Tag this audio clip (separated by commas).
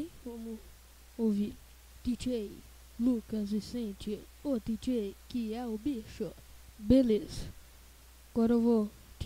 Speech